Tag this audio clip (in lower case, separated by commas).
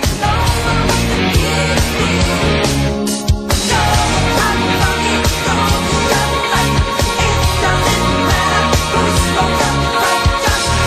funk, singing, music, pop music